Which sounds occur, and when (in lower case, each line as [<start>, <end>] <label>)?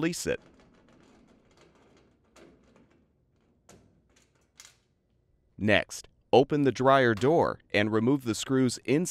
[0.00, 0.34] man speaking
[0.00, 9.10] mechanisms
[0.29, 3.06] generic impact sounds
[3.28, 3.92] generic impact sounds
[4.09, 4.92] generic impact sounds
[5.05, 5.16] tick
[5.55, 6.07] man speaking
[6.31, 7.53] man speaking
[7.11, 7.25] generic impact sounds
[7.67, 9.10] man speaking